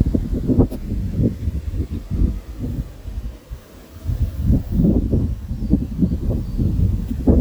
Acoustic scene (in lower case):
park